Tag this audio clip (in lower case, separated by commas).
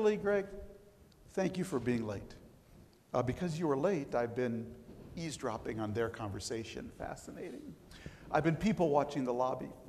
male speech, speech, monologue